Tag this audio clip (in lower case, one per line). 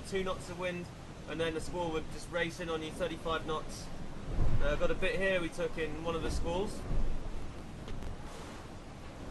speech